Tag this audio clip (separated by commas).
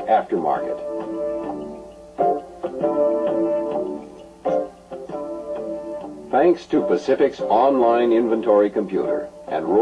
Music, Speech